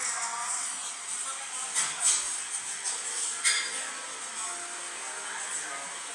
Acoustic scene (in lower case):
cafe